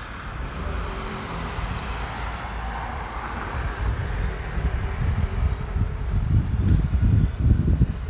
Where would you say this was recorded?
on a street